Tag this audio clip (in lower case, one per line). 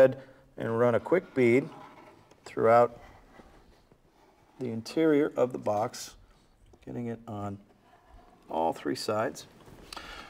speech